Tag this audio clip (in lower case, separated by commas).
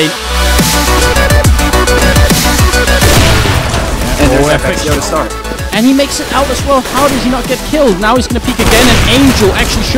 speech, music